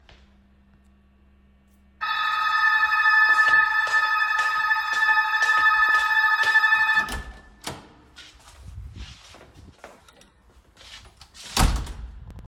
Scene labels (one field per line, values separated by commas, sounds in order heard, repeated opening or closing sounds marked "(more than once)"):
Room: hallway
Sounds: bell ringing, footsteps, door (more than once)